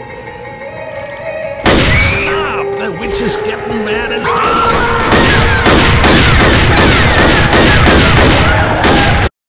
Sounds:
speech

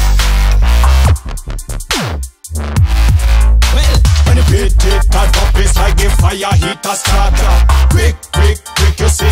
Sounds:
music
drum machine

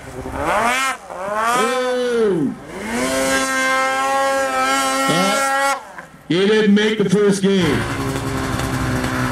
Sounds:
driving snowmobile

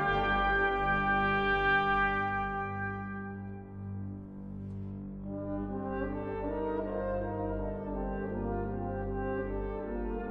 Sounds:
brass instrument
music

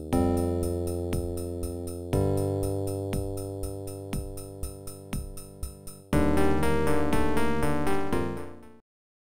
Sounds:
music

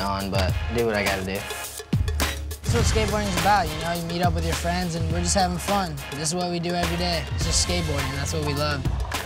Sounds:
speech
music

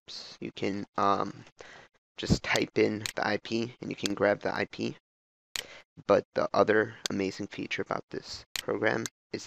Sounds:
speech

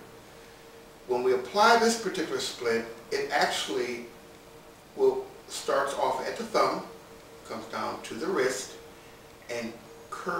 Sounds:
speech

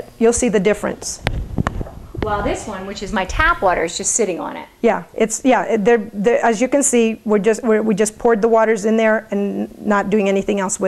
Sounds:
speech

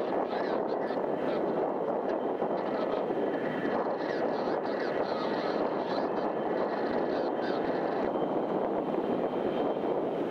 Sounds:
speech
vehicle

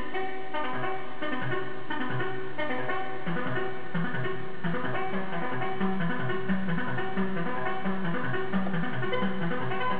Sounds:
music
sampler

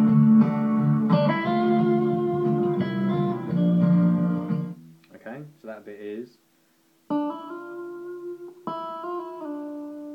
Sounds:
electronic tuner
guitar
inside a small room
musical instrument
music
plucked string instrument

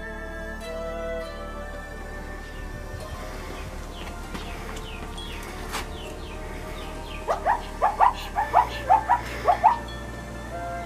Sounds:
zebra braying

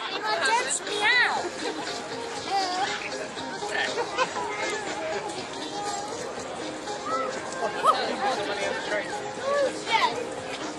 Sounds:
speech
music

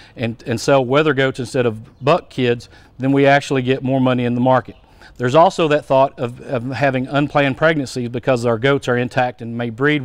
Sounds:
speech

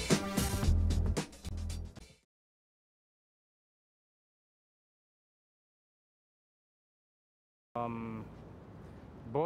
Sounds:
music
speech

